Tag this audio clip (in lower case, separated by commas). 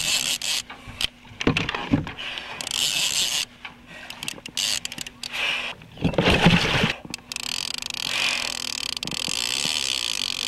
boat, canoe, rowboat, vehicle